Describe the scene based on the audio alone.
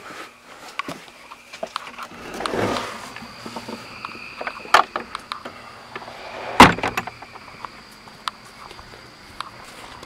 Someone breathes fast and a door is closed